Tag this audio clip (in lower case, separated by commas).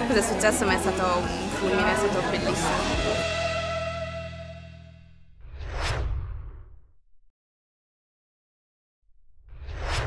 sound effect